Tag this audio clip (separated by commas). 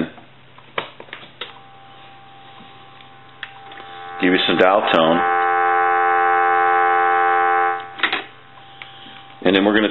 Speech, Dial tone